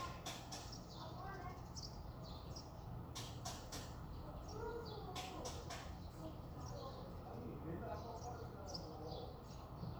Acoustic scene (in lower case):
residential area